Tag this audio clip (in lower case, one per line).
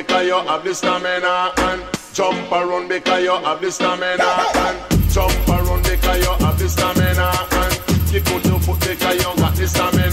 reggae
music